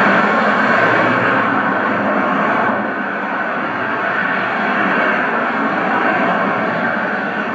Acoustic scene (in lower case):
street